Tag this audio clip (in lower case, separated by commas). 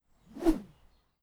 swish